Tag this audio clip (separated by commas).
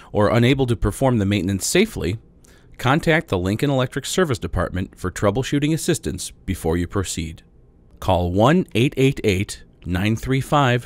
Speech